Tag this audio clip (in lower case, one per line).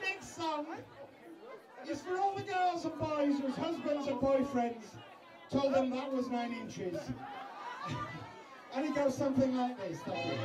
speech